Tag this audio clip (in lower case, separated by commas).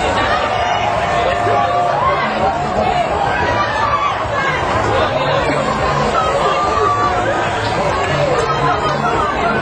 water vehicle, music, speech